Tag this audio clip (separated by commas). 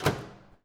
Microwave oven, Slam, Door, home sounds